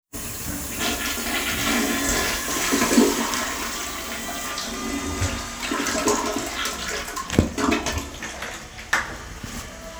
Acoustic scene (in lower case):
restroom